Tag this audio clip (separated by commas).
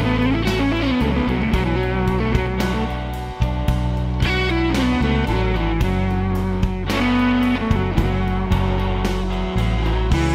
Music